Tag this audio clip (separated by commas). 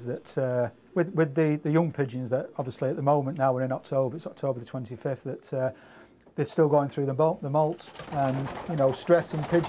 inside a small room, Speech